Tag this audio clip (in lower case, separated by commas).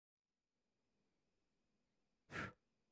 breathing, respiratory sounds